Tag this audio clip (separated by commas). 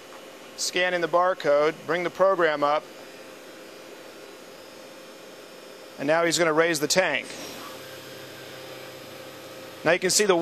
Speech